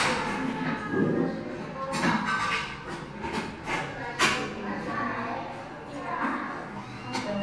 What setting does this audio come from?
crowded indoor space